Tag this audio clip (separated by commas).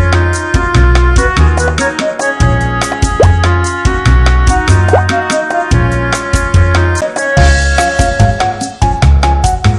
Music